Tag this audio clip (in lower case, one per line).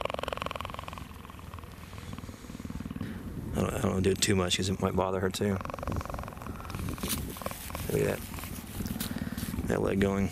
cheetah chirrup